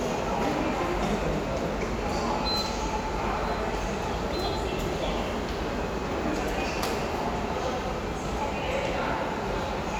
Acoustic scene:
subway station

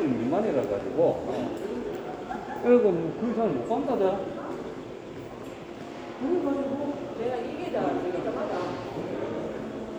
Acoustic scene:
crowded indoor space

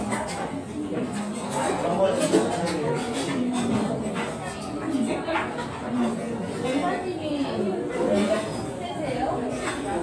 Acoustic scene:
restaurant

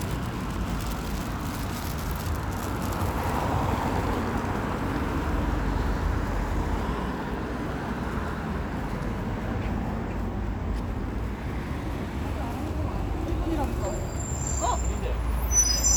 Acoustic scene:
street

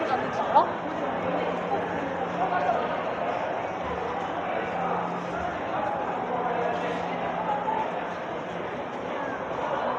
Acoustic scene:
crowded indoor space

